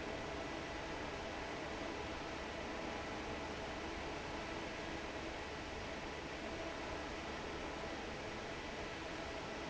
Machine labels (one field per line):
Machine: fan